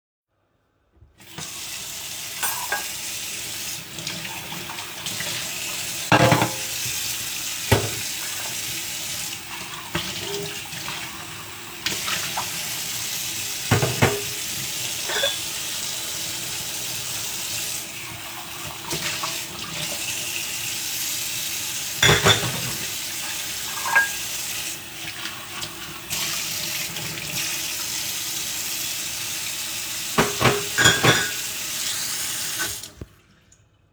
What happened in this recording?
I washed dishes with running water